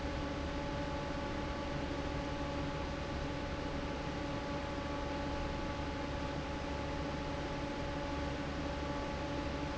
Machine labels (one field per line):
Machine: fan